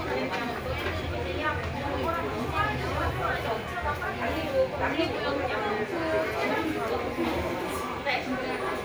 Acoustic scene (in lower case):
crowded indoor space